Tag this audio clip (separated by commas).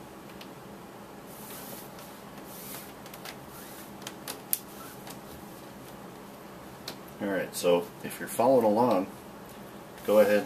Speech